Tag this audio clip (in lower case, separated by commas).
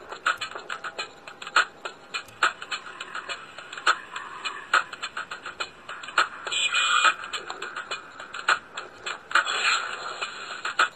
music